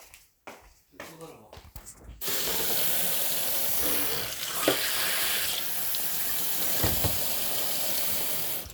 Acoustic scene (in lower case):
kitchen